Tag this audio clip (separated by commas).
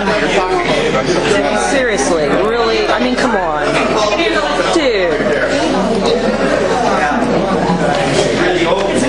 Speech